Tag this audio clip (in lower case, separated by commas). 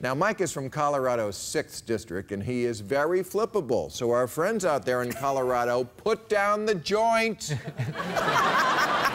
speech